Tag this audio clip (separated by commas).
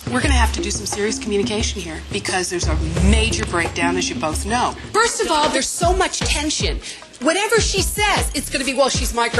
Speech, Music